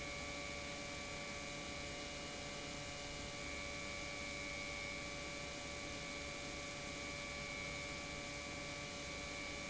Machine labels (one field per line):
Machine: pump